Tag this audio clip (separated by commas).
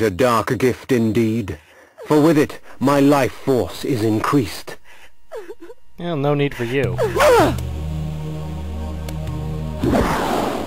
Music, Speech